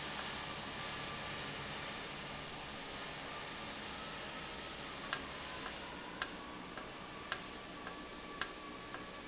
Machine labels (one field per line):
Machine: valve